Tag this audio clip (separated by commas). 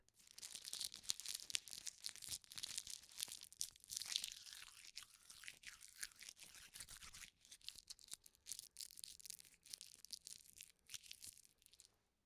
Crumpling